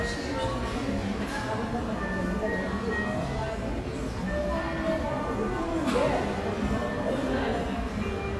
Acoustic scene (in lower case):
cafe